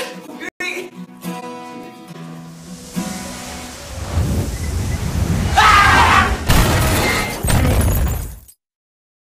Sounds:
car, vehicle, speech, music

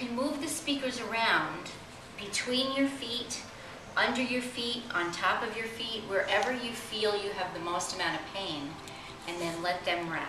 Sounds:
speech

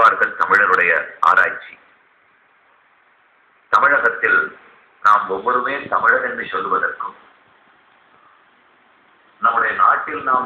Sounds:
man speaking, speech, narration

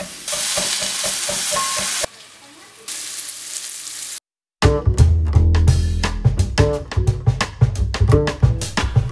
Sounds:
music, speech

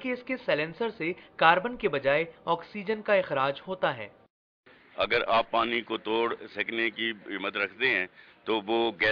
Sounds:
speech

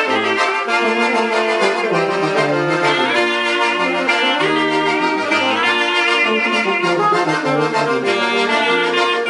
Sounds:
clarinet, brass instrument

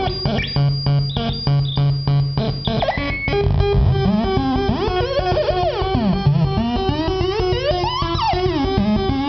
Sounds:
tapping (guitar technique), music

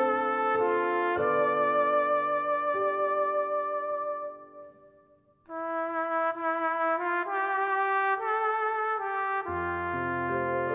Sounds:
playing cornet

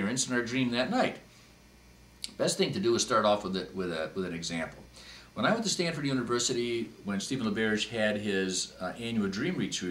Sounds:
speech, inside a small room

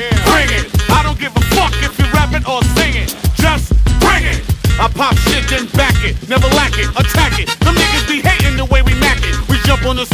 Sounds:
music

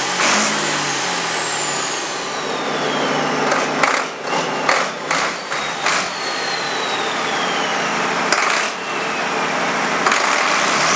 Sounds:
truck, engine

